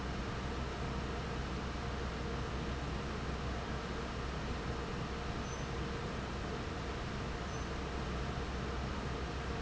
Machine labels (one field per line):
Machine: fan